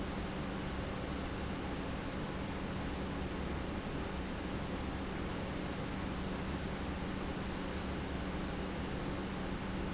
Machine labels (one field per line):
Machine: pump